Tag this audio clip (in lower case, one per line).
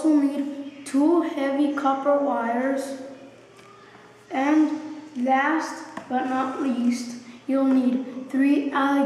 speech